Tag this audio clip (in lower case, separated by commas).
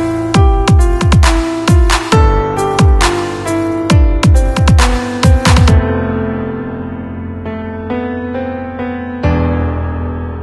dubstep, music